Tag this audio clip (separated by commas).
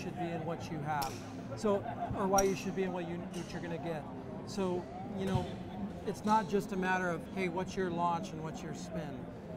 Speech